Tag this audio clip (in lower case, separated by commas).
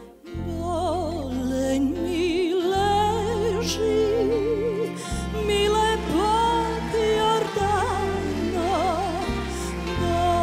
music